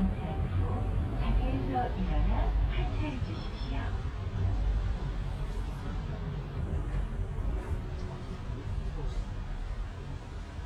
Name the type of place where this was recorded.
bus